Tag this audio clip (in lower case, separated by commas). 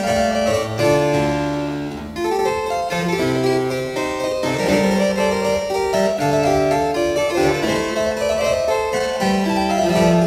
harpsichord, keyboard (musical), playing harpsichord